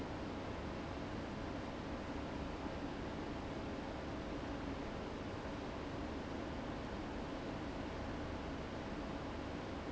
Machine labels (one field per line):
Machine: fan